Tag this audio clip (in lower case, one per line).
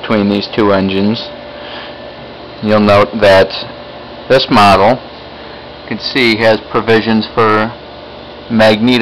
speech